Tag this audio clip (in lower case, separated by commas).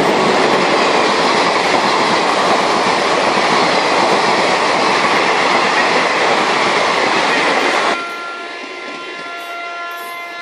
train horning